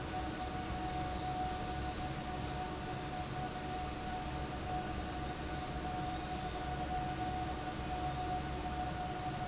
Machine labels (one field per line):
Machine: fan